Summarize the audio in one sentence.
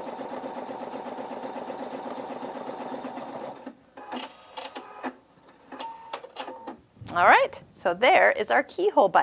A sewing machine is operating and a woman speaks